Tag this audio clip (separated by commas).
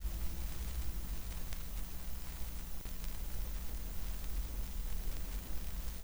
Crackle